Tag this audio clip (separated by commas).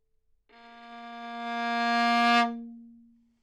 Bowed string instrument, Music, Musical instrument